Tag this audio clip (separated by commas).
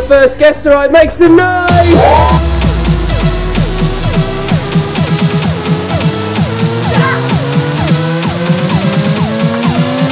Speech, Music